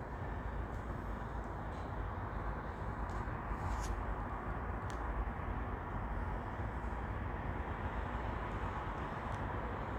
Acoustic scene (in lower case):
elevator